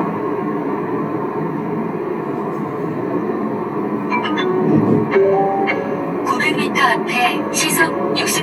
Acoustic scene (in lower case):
car